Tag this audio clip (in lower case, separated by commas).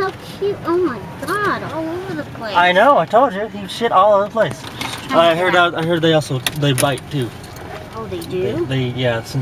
speech